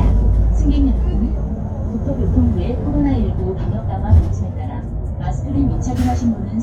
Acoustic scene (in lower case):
bus